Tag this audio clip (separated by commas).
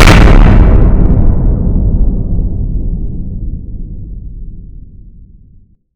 Explosion